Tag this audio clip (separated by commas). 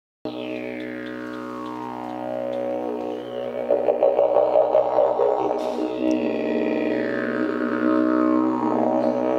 Musical instrument, Didgeridoo, Music